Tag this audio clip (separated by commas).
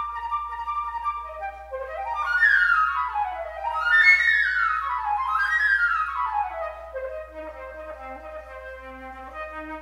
Wind instrument, Flute, playing flute